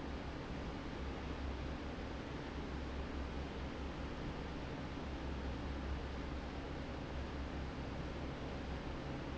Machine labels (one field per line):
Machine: fan